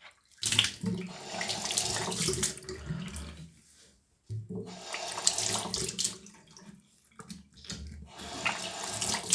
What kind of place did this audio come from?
restroom